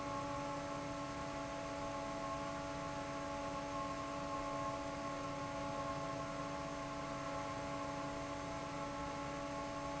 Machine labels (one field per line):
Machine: fan